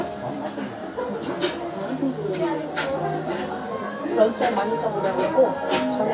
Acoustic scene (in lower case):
restaurant